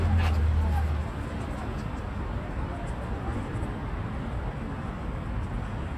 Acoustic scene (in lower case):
residential area